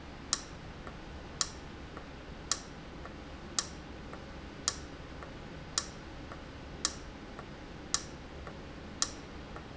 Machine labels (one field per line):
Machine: valve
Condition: abnormal